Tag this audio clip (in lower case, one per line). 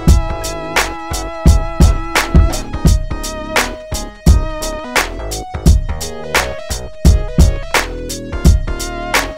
music